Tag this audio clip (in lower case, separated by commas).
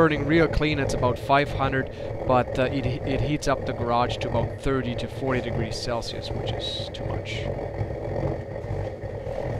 speech